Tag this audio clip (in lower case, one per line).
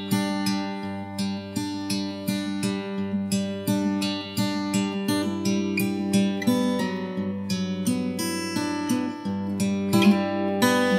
music
lullaby